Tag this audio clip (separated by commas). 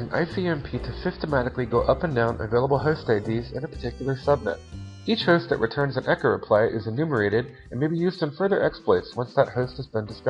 Speech